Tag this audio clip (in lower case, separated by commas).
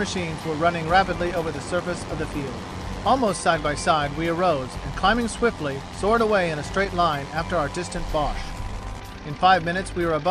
vehicle